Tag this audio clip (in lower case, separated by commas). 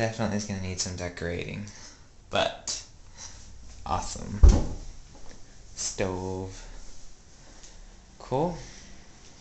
speech